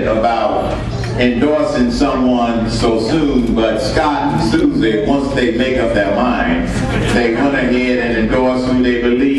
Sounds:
Speech, man speaking

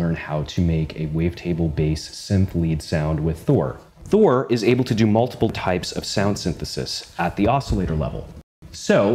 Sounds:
Speech

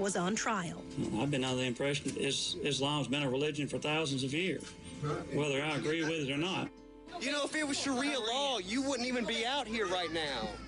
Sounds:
Speech

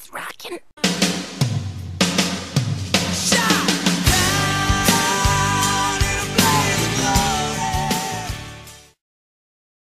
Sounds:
Guitar, Musical instrument, Electric guitar, Music, Strum

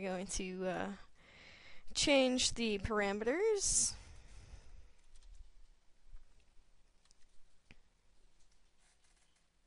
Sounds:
Silence, Speech

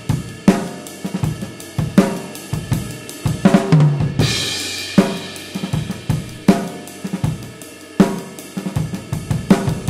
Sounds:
playing cymbal, Music, Cymbal

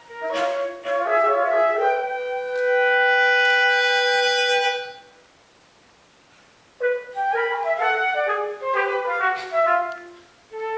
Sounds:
Brass instrument, French horn

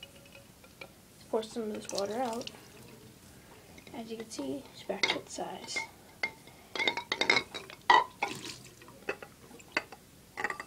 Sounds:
Speech

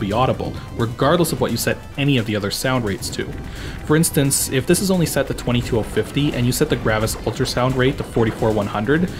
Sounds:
Music, Speech

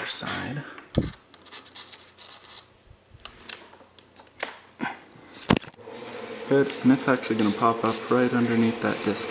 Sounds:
Speech, inside a small room

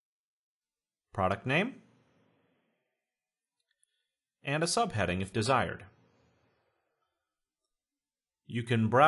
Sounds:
Speech

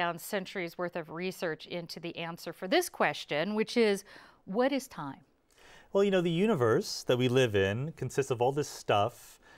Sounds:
Speech

